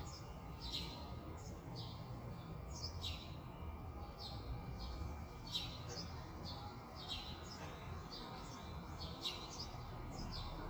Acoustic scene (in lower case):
residential area